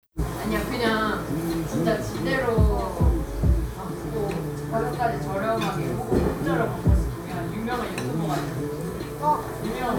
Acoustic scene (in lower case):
cafe